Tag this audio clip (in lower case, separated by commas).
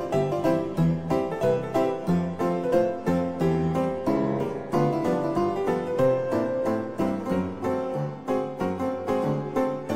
keyboard (musical), piano